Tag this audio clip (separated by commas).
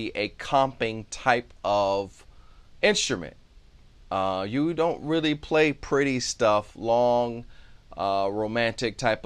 Speech